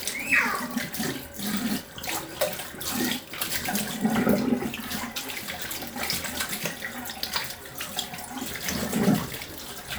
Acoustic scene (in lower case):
restroom